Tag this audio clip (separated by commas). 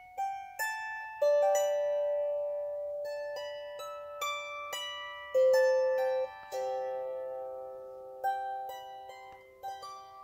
playing zither